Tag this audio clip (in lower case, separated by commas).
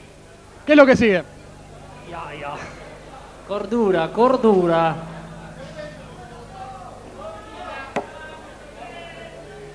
speech